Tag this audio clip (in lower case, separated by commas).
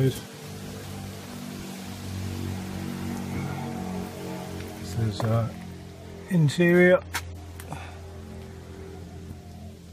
speech